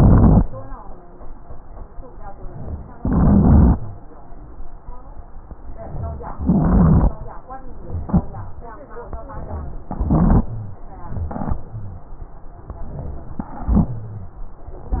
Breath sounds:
0.00-0.44 s: crackles
2.98-3.76 s: inhalation
2.98-3.76 s: crackles
6.41-7.19 s: inhalation
6.41-7.19 s: crackles
9.87-10.57 s: inhalation
9.87-10.57 s: crackles

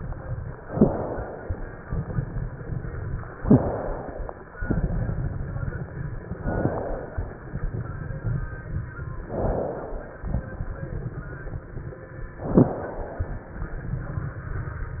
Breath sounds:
0.00-0.49 s: crackles
0.61-1.52 s: inhalation
0.68-0.89 s: crackles
1.65-3.34 s: crackles
3.40-3.72 s: crackles
3.45-4.37 s: inhalation
4.55-6.39 s: crackles
6.43-7.34 s: inhalation
7.34-9.18 s: crackles
9.31-10.23 s: inhalation
10.28-12.33 s: crackles
12.46-12.79 s: crackles
12.46-13.38 s: inhalation
13.47-15.00 s: crackles

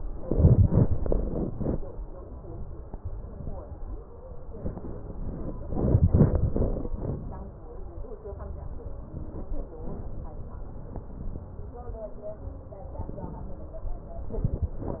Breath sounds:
2.07-2.98 s: inhalation
2.98-3.99 s: exhalation
12.98-13.94 s: inhalation
13.94-14.84 s: exhalation

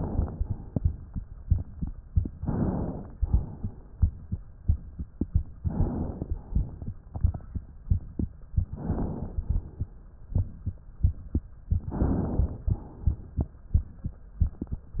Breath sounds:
2.41-3.15 s: inhalation
3.19-3.78 s: exhalation
5.58-6.36 s: inhalation
6.36-6.98 s: exhalation
8.67-9.35 s: inhalation
9.35-9.91 s: exhalation
11.86-12.70 s: inhalation
12.70-13.47 s: exhalation

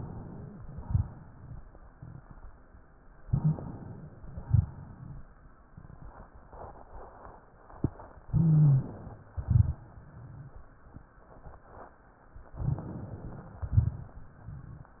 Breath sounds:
3.26-4.25 s: inhalation
3.29-3.55 s: wheeze
4.26-5.41 s: exhalation
4.47-4.72 s: rhonchi
8.27-9.23 s: inhalation
8.31-8.84 s: wheeze
9.33-9.74 s: rhonchi
9.34-10.68 s: exhalation
12.53-13.58 s: crackles
12.54-13.62 s: inhalation
13.59-14.32 s: exhalation
13.59-14.32 s: crackles

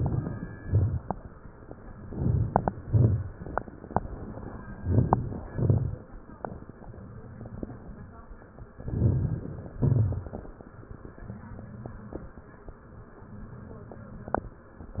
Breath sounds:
0.00-0.57 s: inhalation
0.00-0.57 s: crackles
0.58-1.15 s: exhalation
0.58-1.15 s: crackles
2.00-2.69 s: inhalation
2.00-2.69 s: crackles
2.70-3.39 s: exhalation
2.70-3.39 s: crackles
4.74-5.43 s: inhalation
4.74-5.43 s: crackles
5.48-6.16 s: exhalation
5.48-6.16 s: crackles
8.73-9.69 s: inhalation
8.73-9.69 s: crackles
9.74-10.69 s: exhalation
9.74-10.69 s: crackles

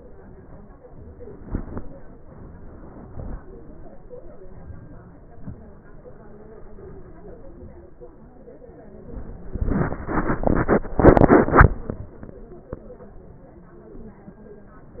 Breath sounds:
4.58-5.17 s: inhalation
5.38-5.82 s: exhalation

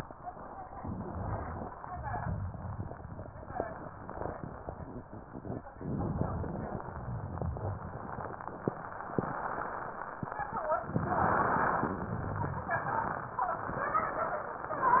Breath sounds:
0.66-1.75 s: inhalation
5.78-6.87 s: inhalation
5.78-6.87 s: crackles
6.87-8.81 s: exhalation
6.90-8.81 s: crackles
10.97-12.01 s: inhalation

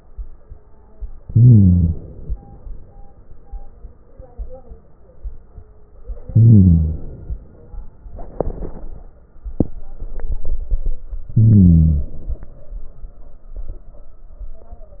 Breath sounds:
1.30-2.60 s: inhalation
6.27-7.57 s: inhalation
11.32-12.62 s: inhalation

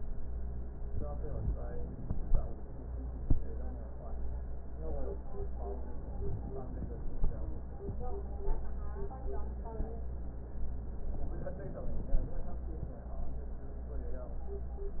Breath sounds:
6.06-7.22 s: inhalation
11.23-12.39 s: inhalation

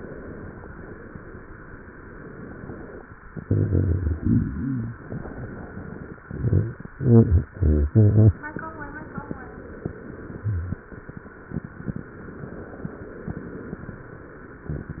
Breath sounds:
0.01-1.84 s: exhalation
1.98-3.05 s: inhalation
5.07-6.22 s: inhalation
12.28-13.43 s: inhalation
13.43-15.00 s: exhalation

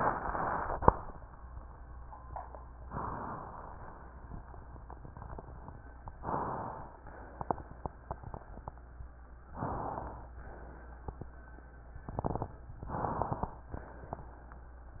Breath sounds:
2.88-4.04 s: inhalation
6.17-7.08 s: inhalation
7.06-7.89 s: exhalation
9.51-10.34 s: inhalation
10.40-11.23 s: exhalation
12.79-13.59 s: inhalation
13.72-14.52 s: exhalation

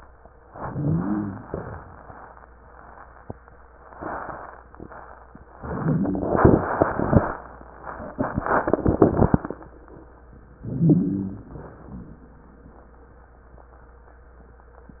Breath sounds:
0.52-1.44 s: inhalation
0.52-1.44 s: wheeze
1.44-2.04 s: exhalation
10.64-11.58 s: inhalation
10.64-11.58 s: wheeze
11.58-12.20 s: exhalation

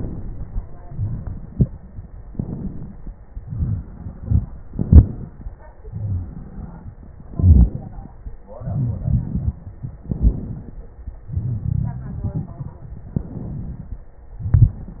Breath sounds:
0.00-0.83 s: inhalation
0.00-0.83 s: crackles
0.85-2.20 s: exhalation
1.43-1.77 s: stridor
2.22-3.32 s: inhalation
2.22-3.32 s: crackles
3.34-4.63 s: exhalation
3.34-4.63 s: crackles
4.68-5.79 s: inhalation
4.68-5.79 s: crackles
5.80-7.21 s: crackles
5.80-7.25 s: exhalation
7.25-8.46 s: inhalation
7.25-8.46 s: crackles
8.47-10.04 s: exhalation
8.57-9.07 s: wheeze
10.04-11.25 s: inhalation
10.04-11.25 s: crackles
11.27-13.04 s: exhalation
11.27-13.04 s: crackles
13.06-14.29 s: inhalation
13.06-14.29 s: crackles
14.32-15.00 s: exhalation
14.32-15.00 s: crackles

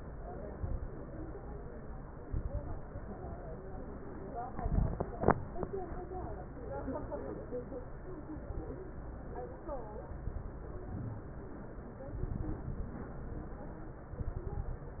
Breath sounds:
0.55-0.95 s: inhalation
0.55-0.95 s: crackles
2.24-2.94 s: inhalation
2.24-2.94 s: crackles
4.54-5.09 s: inhalation
4.54-5.09 s: crackles
8.36-8.80 s: inhalation
8.36-8.80 s: crackles
10.24-10.85 s: inhalation
10.24-10.85 s: crackles
12.18-13.11 s: inhalation
12.18-13.11 s: crackles
14.15-15.00 s: inhalation
14.15-15.00 s: crackles

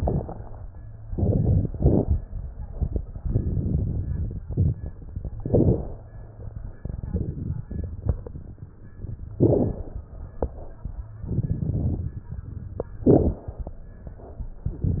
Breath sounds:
3.19-4.99 s: inhalation
5.00-6.90 s: exhalation
6.91-8.79 s: inhalation
8.80-10.95 s: exhalation
10.98-12.76 s: inhalation
12.77-14.34 s: exhalation

